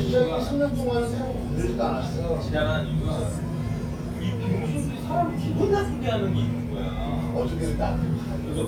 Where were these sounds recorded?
in a restaurant